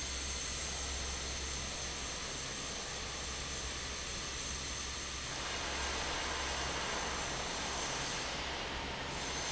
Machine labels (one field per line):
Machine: fan